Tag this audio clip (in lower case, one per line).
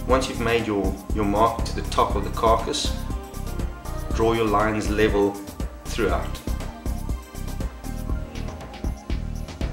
music
speech